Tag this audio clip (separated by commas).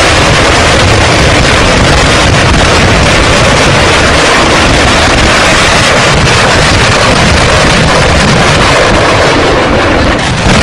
Artillery fire, Rain on surface